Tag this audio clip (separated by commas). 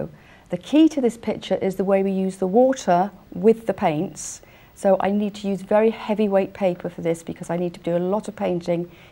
Speech